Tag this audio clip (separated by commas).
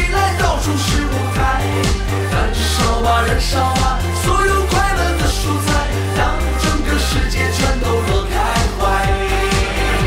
Music, Music of Asia